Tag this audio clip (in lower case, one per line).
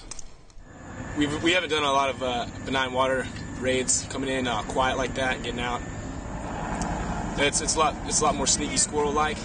speech